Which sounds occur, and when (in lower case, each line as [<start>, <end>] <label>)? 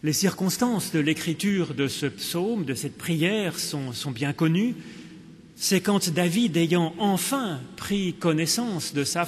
[0.00, 4.71] man speaking
[0.00, 9.25] mechanisms
[4.75, 5.23] breathing
[5.55, 9.25] man speaking